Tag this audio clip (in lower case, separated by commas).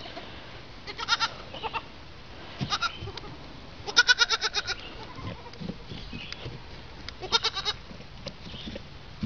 animal, livestock